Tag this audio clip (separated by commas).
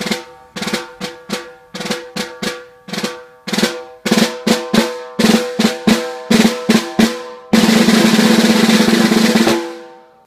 Drum, Bass drum, Snare drum, playing snare drum, Drum roll, Percussion